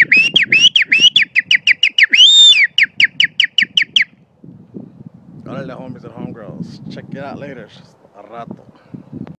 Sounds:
Whistle

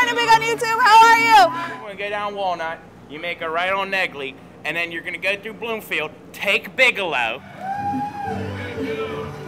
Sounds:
Music, outside, urban or man-made, Speech

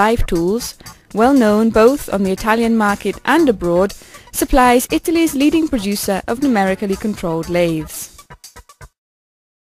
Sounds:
Speech, Music

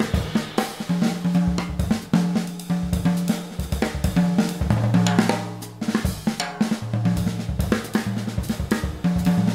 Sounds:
Music, Drum, Musical instrument, Drum kit

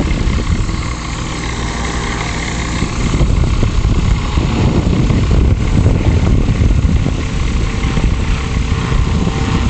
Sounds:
Aircraft, Vehicle, Propeller, Helicopter

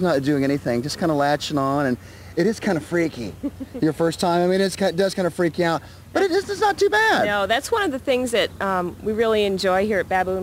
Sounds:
Speech

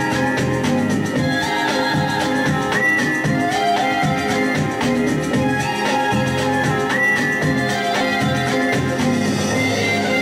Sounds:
Music

